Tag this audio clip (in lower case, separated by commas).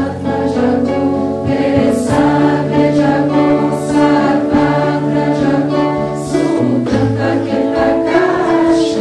vocal music, music, musical instrument, mantra, singing